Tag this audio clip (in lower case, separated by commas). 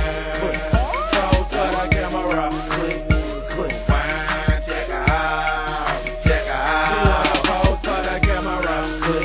music